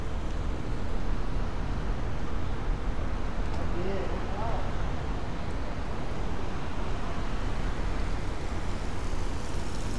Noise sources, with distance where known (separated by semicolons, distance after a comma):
person or small group talking, near